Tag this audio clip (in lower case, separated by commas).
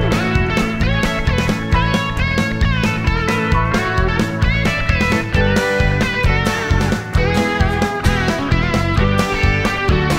music